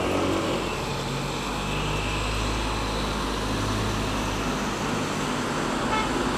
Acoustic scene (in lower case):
street